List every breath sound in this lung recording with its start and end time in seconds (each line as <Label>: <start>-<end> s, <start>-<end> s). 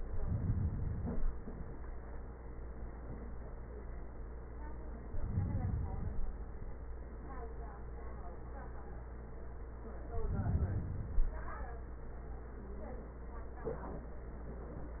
Inhalation: 0.00-1.41 s, 4.96-6.37 s, 10.04-11.46 s